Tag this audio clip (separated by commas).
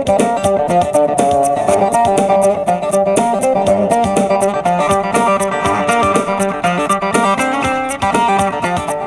Music